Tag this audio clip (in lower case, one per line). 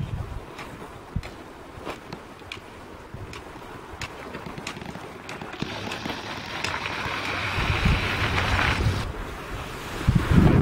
outside, rural or natural